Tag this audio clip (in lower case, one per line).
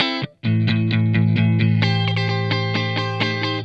plucked string instrument
electric guitar
musical instrument
guitar
music